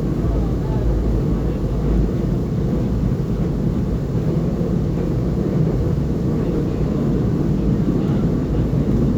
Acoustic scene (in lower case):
subway train